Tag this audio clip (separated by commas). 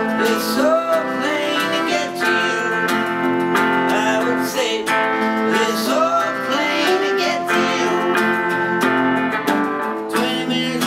Music